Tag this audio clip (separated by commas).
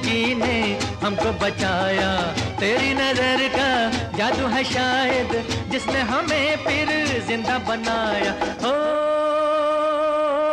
Music, Music of Bollywood